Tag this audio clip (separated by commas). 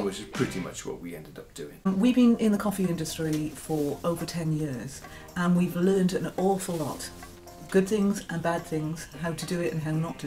Speech